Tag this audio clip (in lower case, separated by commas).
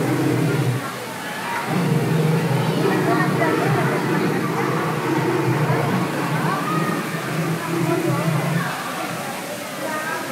dinosaurs bellowing